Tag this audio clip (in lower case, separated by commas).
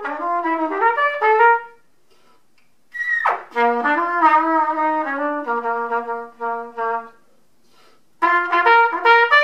musical instrument, music, brass instrument, trumpet